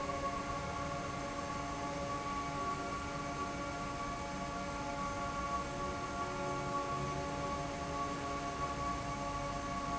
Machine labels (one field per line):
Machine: fan